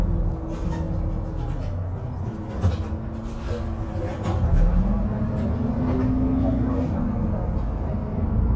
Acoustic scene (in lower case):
bus